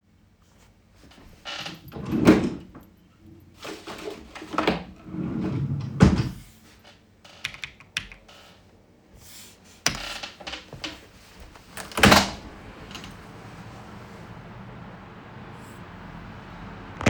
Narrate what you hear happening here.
I opened the wardrobe while the chair was squeaking and looked inside then closed it. I sat back down and the chair squeaked again as I started typing on the keyboard. The chair continued to squeak as I typed. I then stood up and opened the window.